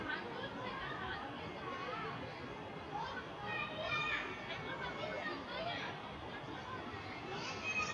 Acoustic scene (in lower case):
residential area